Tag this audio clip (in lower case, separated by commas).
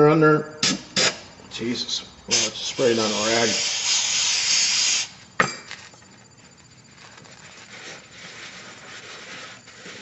inside a small room, speech